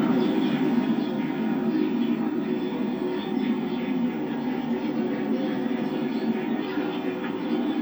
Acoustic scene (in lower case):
park